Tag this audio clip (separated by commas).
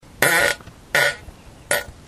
Fart